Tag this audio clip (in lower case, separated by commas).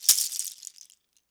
percussion, rattle (instrument), musical instrument, music